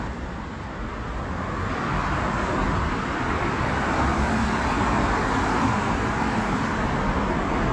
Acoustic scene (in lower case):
street